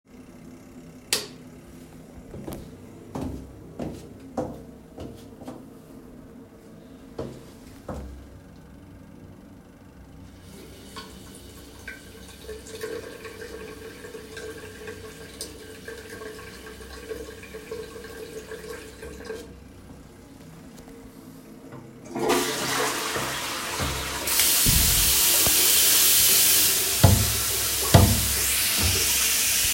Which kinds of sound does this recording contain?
light switch, footsteps, running water, toilet flushing, wardrobe or drawer